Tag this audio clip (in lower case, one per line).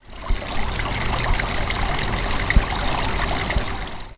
water
stream